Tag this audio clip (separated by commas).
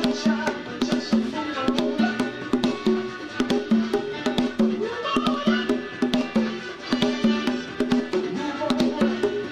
playing congas